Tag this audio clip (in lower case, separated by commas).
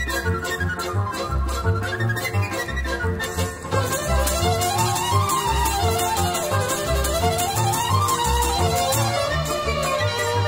music, middle eastern music